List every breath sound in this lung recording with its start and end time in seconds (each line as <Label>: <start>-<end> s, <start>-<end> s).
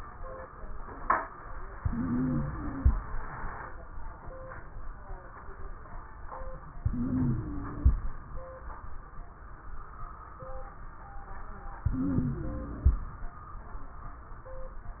Inhalation: 1.72-3.00 s, 6.75-8.03 s, 11.85-13.13 s
Wheeze: 1.72-3.00 s, 6.75-8.03 s, 11.85-13.13 s